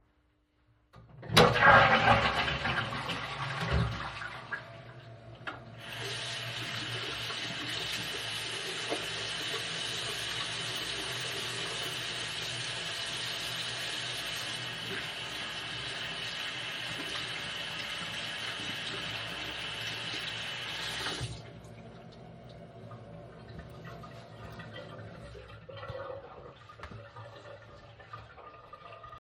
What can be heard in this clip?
toilet flushing, running water